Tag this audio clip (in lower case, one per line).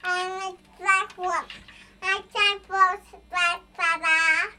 speech
human voice